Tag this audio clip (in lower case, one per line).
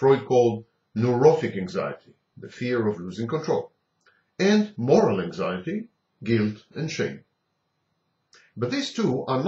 speech